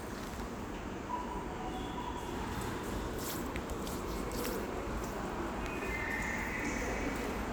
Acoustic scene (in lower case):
subway station